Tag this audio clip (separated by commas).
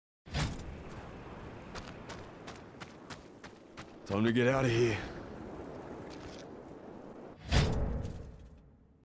Speech